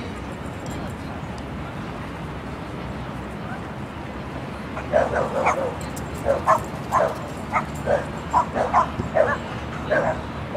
Multiple dogs barking